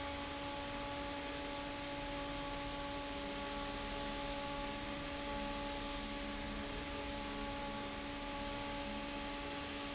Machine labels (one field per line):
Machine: fan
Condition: normal